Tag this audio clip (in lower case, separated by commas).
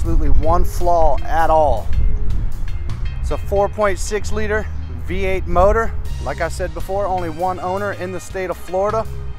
music, speech